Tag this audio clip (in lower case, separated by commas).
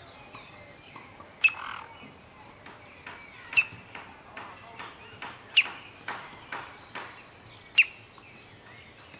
bird